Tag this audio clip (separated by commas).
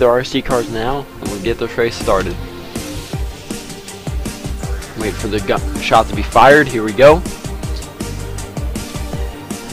Music, Speech